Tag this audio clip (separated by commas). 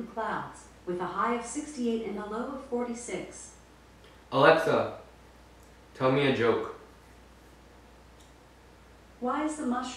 Speech